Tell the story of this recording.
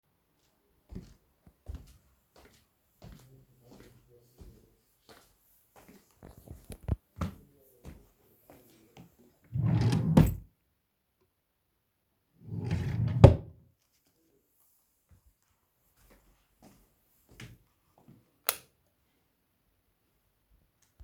I entered the bedroom and walked toward the wardrobe. I opened a drawer to grab an item, and closed it immediately. Finally, I turned off the light switch before exiting the room